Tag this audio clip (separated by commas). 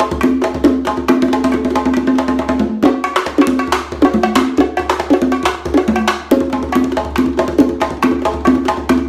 playing bongo